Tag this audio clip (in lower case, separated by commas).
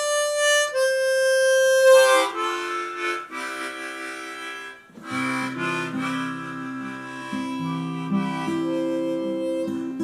musical instrument, acoustic guitar, music, guitar, plucked string instrument